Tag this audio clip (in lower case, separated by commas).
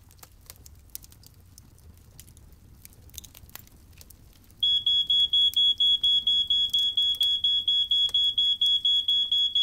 smoke detector beeping